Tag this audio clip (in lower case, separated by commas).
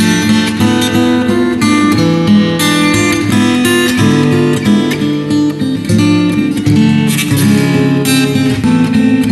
guitar, music, musical instrument, strum, plucked string instrument, acoustic guitar